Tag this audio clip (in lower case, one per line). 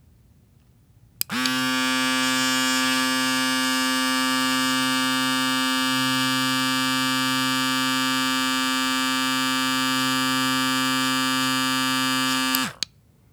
domestic sounds